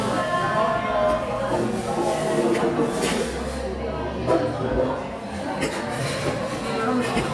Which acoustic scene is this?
cafe